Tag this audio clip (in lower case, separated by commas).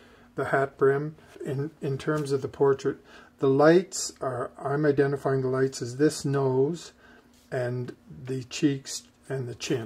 speech